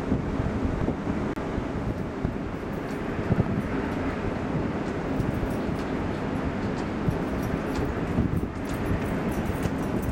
Wind is blowing